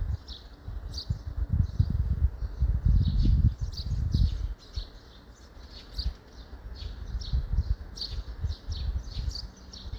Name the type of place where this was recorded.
park